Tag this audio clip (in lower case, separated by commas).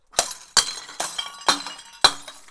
shatter, glass